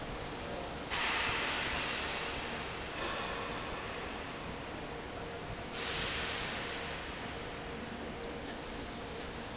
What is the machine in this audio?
fan